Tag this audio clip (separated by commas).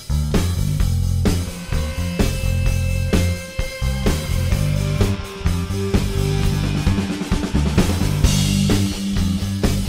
Music